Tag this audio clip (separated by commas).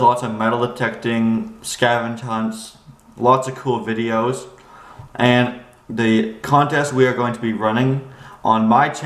Speech